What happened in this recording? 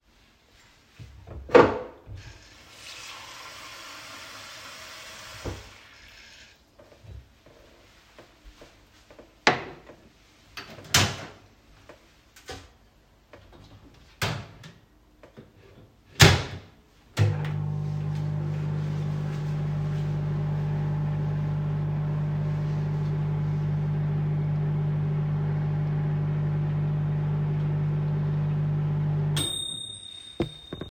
filled water in my cup and then I put my food to warm in the microwave